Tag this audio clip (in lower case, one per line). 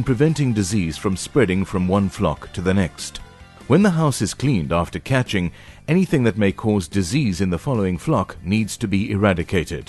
speech
music